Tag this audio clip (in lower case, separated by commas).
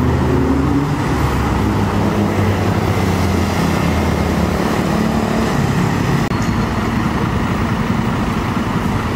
roadway noise, outside, urban or man-made